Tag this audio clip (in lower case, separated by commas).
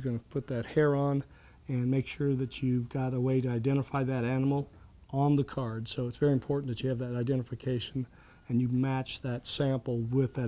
speech